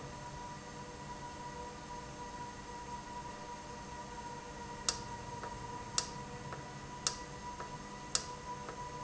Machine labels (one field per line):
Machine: valve